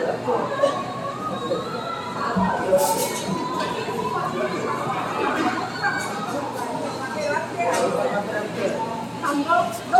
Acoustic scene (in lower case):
cafe